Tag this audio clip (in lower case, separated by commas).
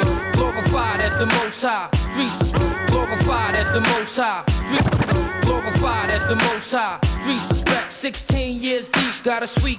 music